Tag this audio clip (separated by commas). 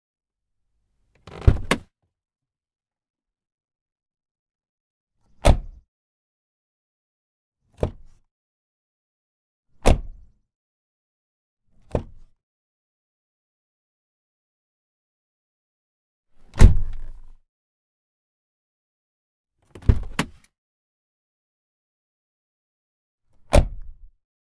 Vehicle, Motor vehicle (road)